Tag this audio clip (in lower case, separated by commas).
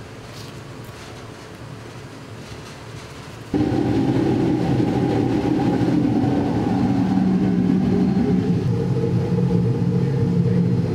inside a large room or hall